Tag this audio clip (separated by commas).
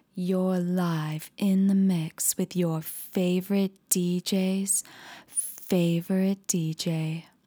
Female speech, Speech, Human voice